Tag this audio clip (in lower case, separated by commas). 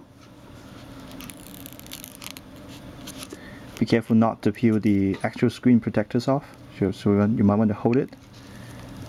speech, squish, inside a small room